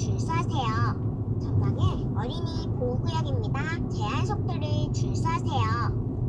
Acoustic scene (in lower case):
car